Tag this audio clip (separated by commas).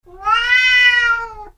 Animal, pets, Cat, Meow